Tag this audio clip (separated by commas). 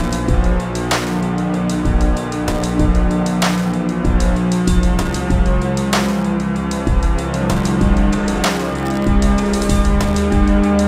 Music